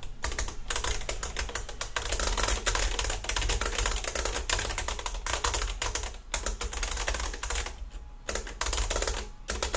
A person typing on the typewriter